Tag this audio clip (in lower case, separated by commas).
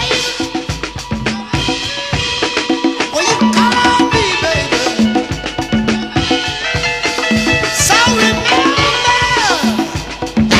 psychedelic rock, rock music, music